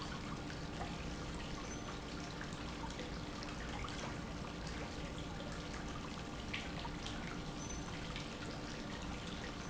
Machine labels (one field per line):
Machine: pump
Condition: normal